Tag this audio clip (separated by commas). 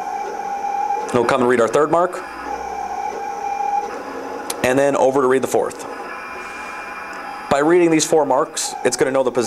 Speech, Printer, inside a small room